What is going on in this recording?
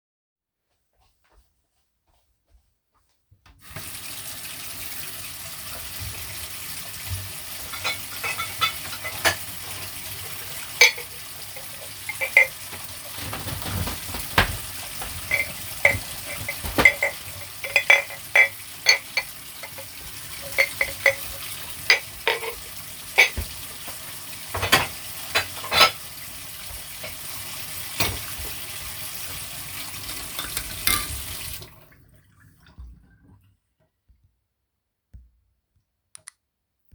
Running water while handling dishes and walking to open a door.